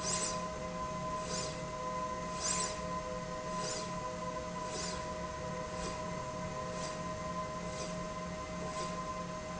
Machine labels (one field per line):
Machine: slide rail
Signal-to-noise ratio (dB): -6 dB